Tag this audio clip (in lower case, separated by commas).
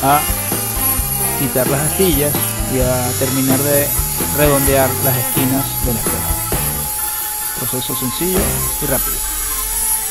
tools, speech, music